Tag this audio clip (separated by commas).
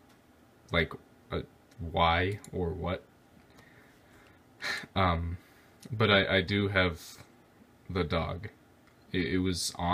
Speech